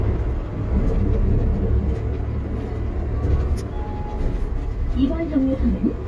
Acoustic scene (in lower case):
bus